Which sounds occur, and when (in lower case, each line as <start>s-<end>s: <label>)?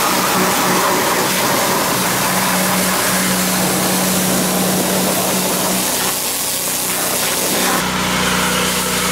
0.0s-9.1s: mechanisms